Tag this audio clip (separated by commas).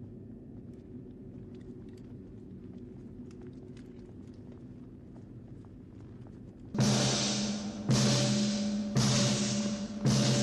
Timpani